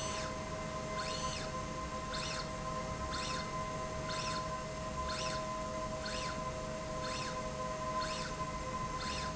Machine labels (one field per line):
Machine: slide rail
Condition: normal